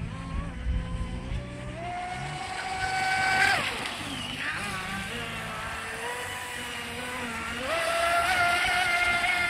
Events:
[0.00, 9.45] mechanisms
[0.00, 9.45] music
[0.00, 9.45] water

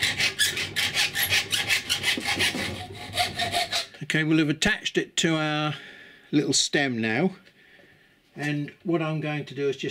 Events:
[2.91, 3.84] surface contact
[7.50, 8.20] breathing
[8.64, 8.82] generic impact sounds
[8.85, 9.90] male speech

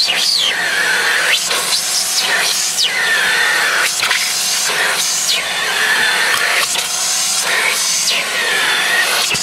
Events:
[0.00, 9.42] power tool
[1.40, 1.56] generic impact sounds
[6.54, 6.85] generic impact sounds
[9.19, 9.40] tap

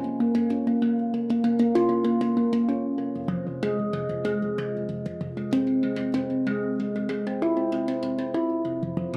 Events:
[0.00, 9.15] music

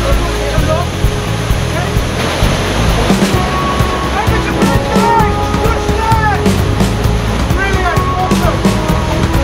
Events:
[0.00, 0.82] male speech
[0.00, 8.57] conversation
[0.00, 9.43] music
[0.00, 9.43] waterfall
[1.69, 1.95] male speech
[4.10, 5.26] male speech
[5.50, 6.34] male speech
[7.55, 8.07] male speech
[7.86, 8.35] shout
[8.26, 8.57] male speech

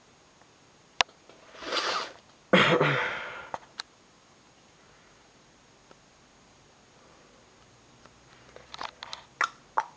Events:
[0.00, 9.95] mechanisms
[0.37, 0.47] generic impact sounds
[0.94, 1.09] generic impact sounds
[1.22, 1.31] generic impact sounds
[1.46, 2.10] snort
[2.11, 2.34] generic impact sounds
[2.50, 3.43] throat clearing
[3.50, 3.61] tick
[3.73, 3.84] tick
[5.84, 5.94] generic impact sounds
[6.80, 7.61] breathing
[8.01, 8.13] generic impact sounds
[8.28, 8.33] generic impact sounds
[8.50, 8.87] generic impact sounds
[9.00, 9.21] generic impact sounds
[9.37, 9.50] human sounds
[9.75, 9.84] human sounds

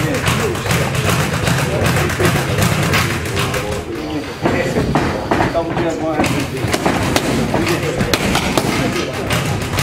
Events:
[0.00, 0.37] thump
[0.00, 9.82] background noise
[0.20, 0.61] man speaking
[0.61, 0.84] thump
[0.95, 1.28] thump
[1.41, 1.61] thump
[1.53, 2.86] man speaking
[1.79, 2.09] thump
[2.21, 2.42] thump
[2.54, 2.75] thump
[2.90, 3.13] thump
[3.12, 4.32] man speaking
[3.30, 3.61] thump
[4.39, 4.59] generic impact sounds
[4.49, 5.01] man speaking
[4.88, 5.02] generic impact sounds
[5.12, 6.54] man speaking
[5.27, 5.49] generic impact sounds
[5.61, 5.79] generic impact sounds
[6.16, 6.29] generic impact sounds
[6.79, 6.92] generic impact sounds
[7.09, 7.20] generic impact sounds
[7.21, 8.16] man speaking
[7.47, 7.64] generic impact sounds
[7.90, 8.16] generic impact sounds
[8.30, 8.39] generic impact sounds
[8.50, 8.62] generic impact sounds
[8.65, 9.07] man speaking
[9.27, 9.52] thump
[9.70, 9.82] thump

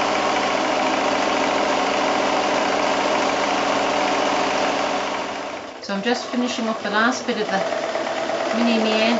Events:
[0.00, 9.15] sewing machine
[5.76, 7.52] female speech
[8.57, 9.15] female speech

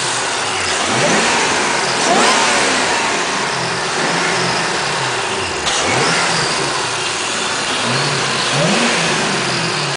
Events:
[0.00, 9.95] medium engine (mid frequency)
[0.88, 3.23] revving
[3.87, 4.57] revving
[5.60, 7.17] revving
[7.69, 8.06] revving
[8.45, 9.32] revving

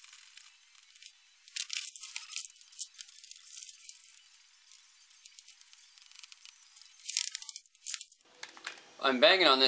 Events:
[0.00, 0.47] generic impact sounds
[0.00, 7.02] mechanisms
[0.00, 7.04] music
[0.69, 1.08] generic impact sounds
[1.44, 1.86] generic impact sounds
[1.92, 2.49] generic impact sounds
[2.55, 2.67] generic impact sounds
[2.72, 2.84] generic impact sounds
[2.94, 3.36] generic impact sounds
[3.42, 3.75] generic impact sounds
[3.83, 4.18] generic impact sounds
[4.68, 4.78] generic impact sounds
[5.09, 5.53] generic impact sounds
[5.60, 5.78] generic impact sounds
[5.92, 6.33] generic impact sounds
[6.41, 6.51] generic impact sounds
[6.76, 6.89] generic impact sounds
[6.98, 7.58] generic impact sounds
[7.82, 8.03] generic impact sounds
[8.21, 9.65] mechanisms
[8.37, 8.51] generic impact sounds
[8.63, 8.77] generic impact sounds
[9.02, 9.65] man speaking

